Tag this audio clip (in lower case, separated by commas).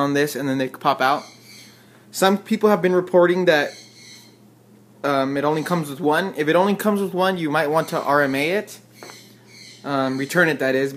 speech